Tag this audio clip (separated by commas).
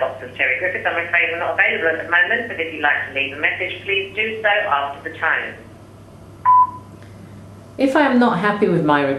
Speech, Telephone